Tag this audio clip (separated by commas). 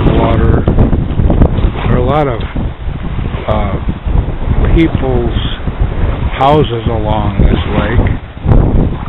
Speech